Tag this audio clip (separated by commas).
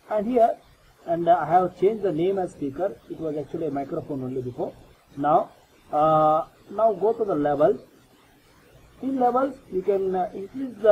Speech